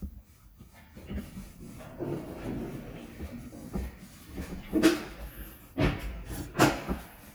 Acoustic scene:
elevator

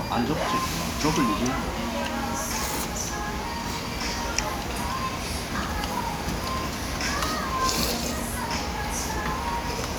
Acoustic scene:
restaurant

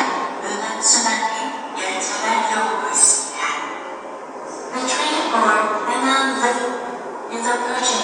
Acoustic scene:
subway station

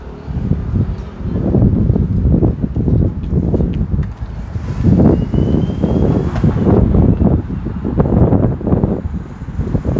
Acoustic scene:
street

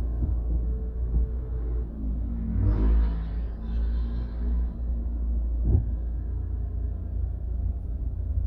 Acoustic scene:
car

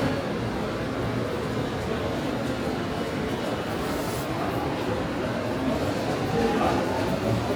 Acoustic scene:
subway station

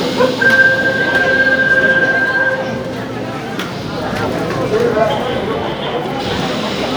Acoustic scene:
subway station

